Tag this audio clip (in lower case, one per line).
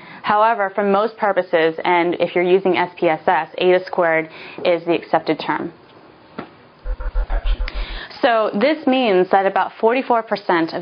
music
speech